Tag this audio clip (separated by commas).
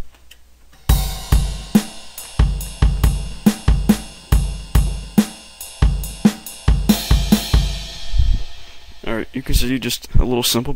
Music, Speech